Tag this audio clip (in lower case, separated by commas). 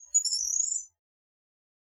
wild animals, bird, animal